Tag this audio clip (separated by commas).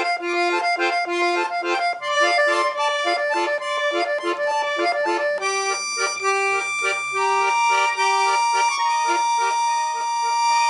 Accordion, Music, Musical instrument, playing accordion, inside a small room